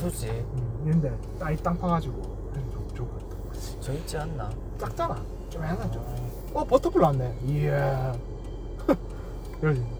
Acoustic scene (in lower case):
car